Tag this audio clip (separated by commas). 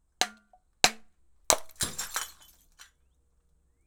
Shatter, Glass